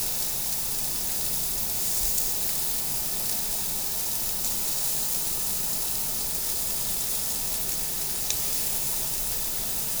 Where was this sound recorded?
in a restaurant